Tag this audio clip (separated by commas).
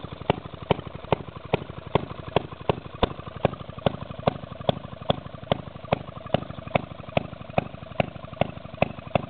Engine